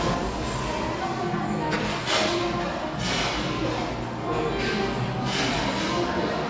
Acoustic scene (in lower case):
cafe